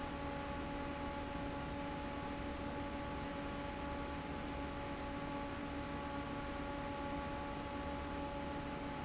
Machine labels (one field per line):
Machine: fan